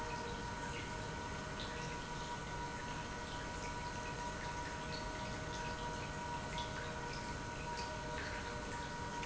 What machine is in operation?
pump